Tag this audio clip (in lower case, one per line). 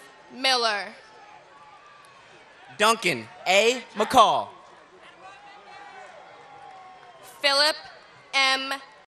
speech